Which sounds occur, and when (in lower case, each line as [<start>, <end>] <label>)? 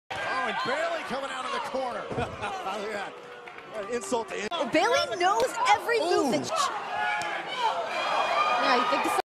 [0.12, 2.00] man speaking
[0.14, 9.18] conversation
[1.08, 1.66] human voice
[2.04, 2.19] generic impact sounds
[2.04, 2.78] giggle
[2.35, 3.06] man speaking
[3.07, 3.17] clapping
[3.23, 3.31] clapping
[3.42, 3.54] clapping
[3.61, 5.22] man speaking
[3.67, 3.79] clapping
[3.67, 4.38] human voice
[3.88, 4.00] clapping
[4.44, 6.62] female speech
[5.31, 5.39] smack
[5.82, 6.41] human voice
[6.45, 6.89] shout
[7.14, 7.23] human voice
[7.41, 7.98] human voice
[7.44, 7.70] shout
[7.78, 9.18] shout
[7.84, 9.19] speech noise
[8.50, 9.19] female speech